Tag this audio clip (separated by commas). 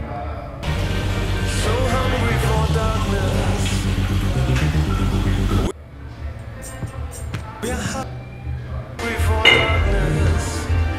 Music, inside a small room